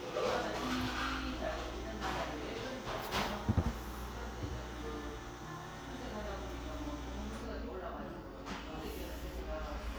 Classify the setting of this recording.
crowded indoor space